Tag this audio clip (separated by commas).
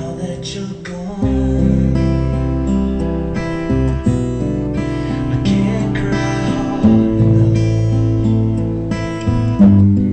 Guitar, Music, Electric guitar, Acoustic guitar, Plucked string instrument, Musical instrument, Strum